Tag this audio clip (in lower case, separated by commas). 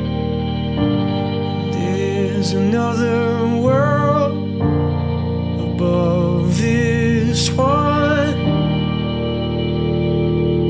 music